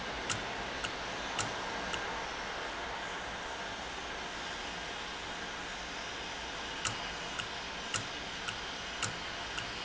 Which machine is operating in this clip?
valve